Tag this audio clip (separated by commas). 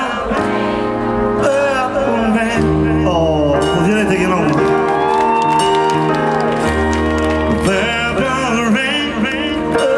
Music, Speech